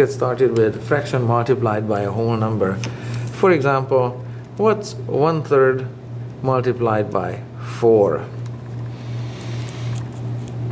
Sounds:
speech

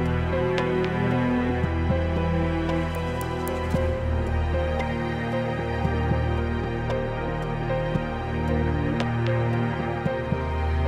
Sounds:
music

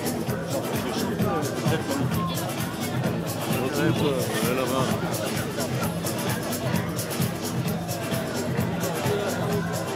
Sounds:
speech
music

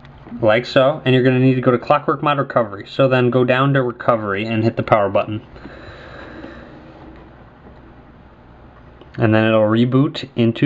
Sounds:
inside a small room
speech

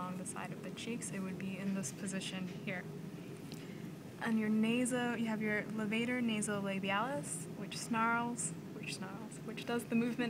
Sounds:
speech

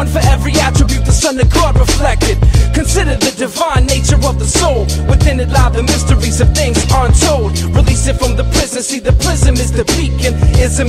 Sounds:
music

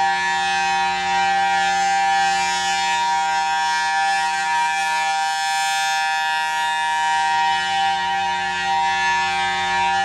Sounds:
siren
civil defense siren

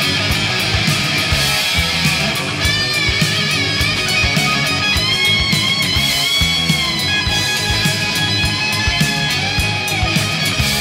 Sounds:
music

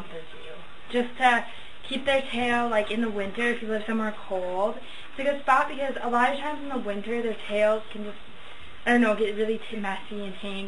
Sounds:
speech

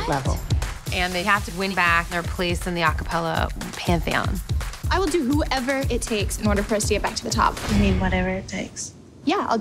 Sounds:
speech
music

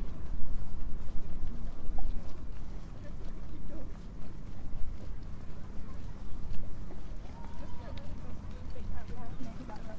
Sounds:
speech
footsteps

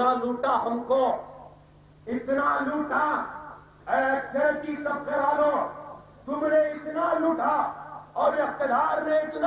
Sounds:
monologue
male speech
speech

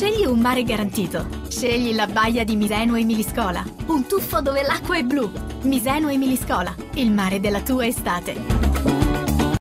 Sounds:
music
speech

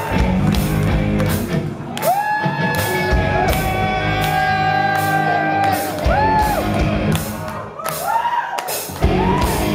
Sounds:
whoop
music

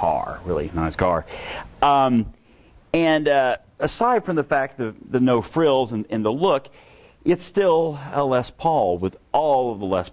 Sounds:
speech

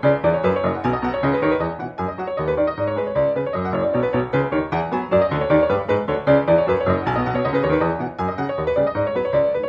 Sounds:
music

